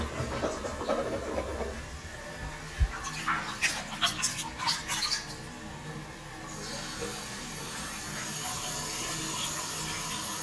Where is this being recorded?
in a restroom